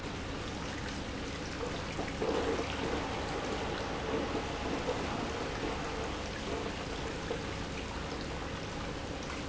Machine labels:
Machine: pump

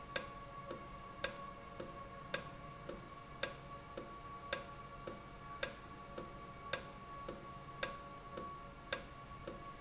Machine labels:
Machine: valve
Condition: normal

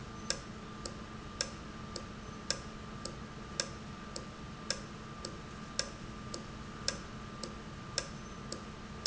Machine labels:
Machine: valve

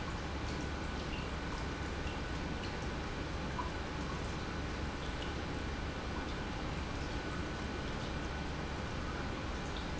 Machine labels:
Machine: pump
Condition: normal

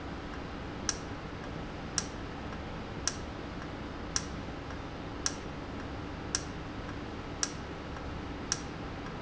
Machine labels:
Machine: valve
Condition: normal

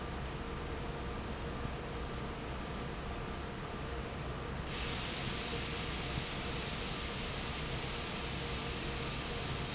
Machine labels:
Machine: fan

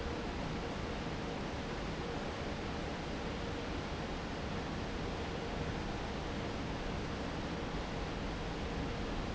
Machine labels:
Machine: fan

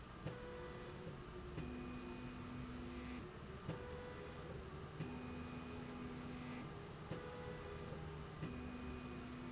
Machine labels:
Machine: slide rail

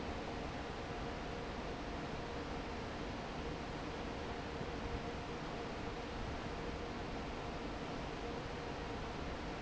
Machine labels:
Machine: fan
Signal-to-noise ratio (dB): 0 dB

